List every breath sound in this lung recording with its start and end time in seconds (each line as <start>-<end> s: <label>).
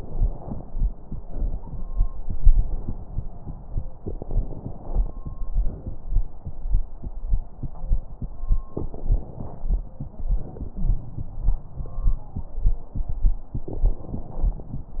0.00-1.14 s: crackles
0.00-1.17 s: exhalation
1.17-2.20 s: inhalation
1.17-2.20 s: crackles
2.23-3.88 s: crackles
2.23-3.97 s: exhalation
3.91-5.60 s: inhalation
3.91-5.60 s: crackles
5.56-6.70 s: exhalation
5.61-6.70 s: crackles
8.67-10.20 s: inhalation
8.67-10.20 s: crackles
10.21-12.36 s: exhalation
10.72-11.65 s: wheeze
13.56-15.00 s: inhalation
13.56-15.00 s: crackles